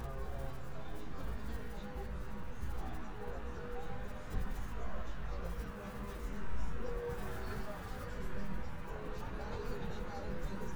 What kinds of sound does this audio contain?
music from an unclear source